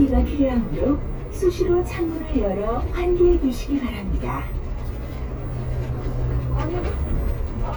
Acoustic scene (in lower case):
bus